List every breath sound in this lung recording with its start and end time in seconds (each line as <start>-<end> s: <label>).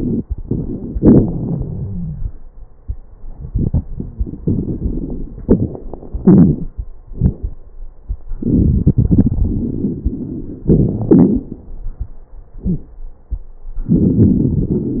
0.00-0.87 s: inhalation
0.00-0.87 s: crackles
0.93-2.29 s: exhalation
1.22-2.29 s: wheeze
3.32-5.38 s: inhalation
3.93-4.36 s: wheeze
5.42-5.81 s: wheeze
5.46-6.83 s: exhalation
6.20-6.72 s: wheeze
8.39-10.66 s: inhalation
8.39-10.66 s: crackles
10.69-11.53 s: exhalation
10.69-11.53 s: crackles
13.85-15.00 s: inhalation
13.85-15.00 s: crackles